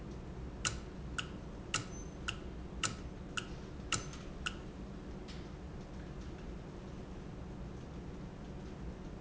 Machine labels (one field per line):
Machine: valve